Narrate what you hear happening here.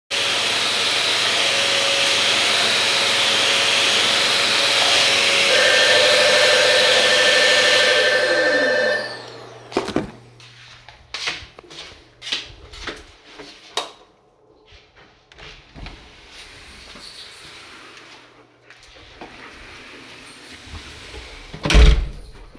I am using a vacuum cleaner, the bell rings, I put down the vacuum_cleaner, I walk down the hallway, I turn on the light switch, I open the door, my dog also comes to the front door and makes breathing sounds, I close the door